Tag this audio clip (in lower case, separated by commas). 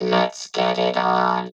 speech, human voice